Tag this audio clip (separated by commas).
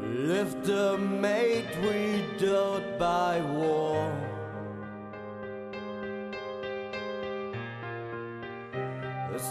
Music